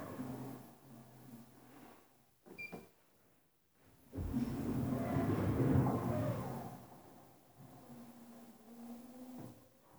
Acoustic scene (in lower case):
elevator